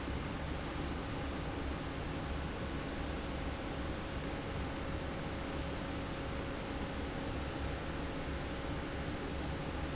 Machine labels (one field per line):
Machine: fan